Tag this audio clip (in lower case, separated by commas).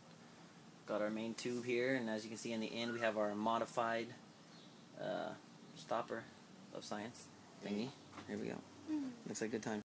speech